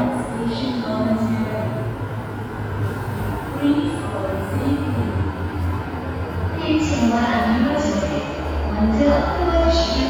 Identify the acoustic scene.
subway station